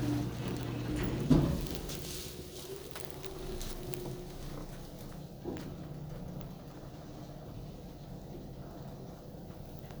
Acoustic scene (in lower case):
elevator